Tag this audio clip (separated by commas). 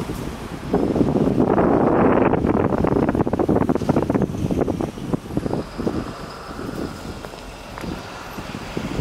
Wind noise (microphone), Wind